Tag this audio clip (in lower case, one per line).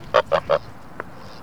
animal
livestock
fowl